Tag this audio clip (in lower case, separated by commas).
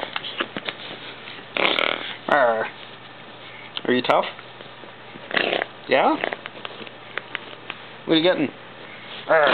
speech, bird, inside a small room